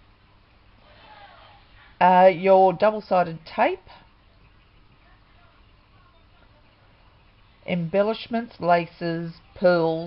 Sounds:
Speech

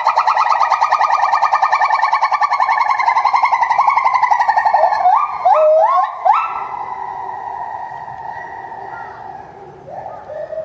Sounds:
gibbon howling

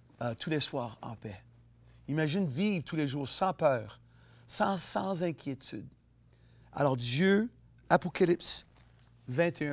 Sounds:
Speech

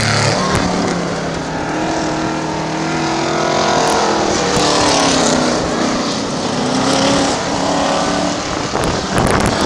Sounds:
Car passing by, Skidding, Car, Motor vehicle (road), Vehicle

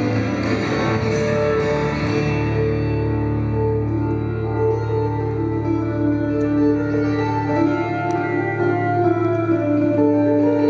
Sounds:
Musical instrument, Guitar, Music, Plucked string instrument

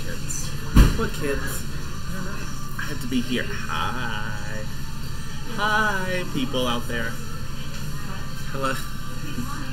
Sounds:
Speech, Music

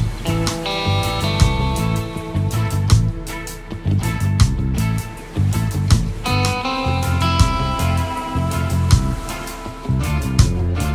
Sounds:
Music

